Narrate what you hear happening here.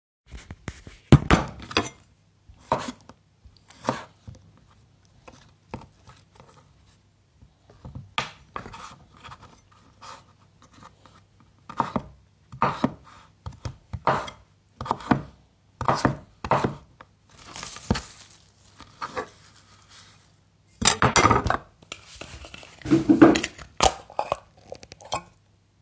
I took the knife and cucumbers and started cutting them. After i finished i took the canned tuna and opened it